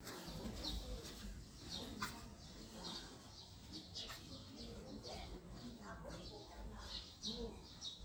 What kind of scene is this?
residential area